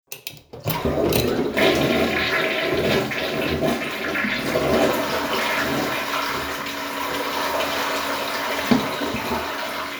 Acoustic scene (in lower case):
restroom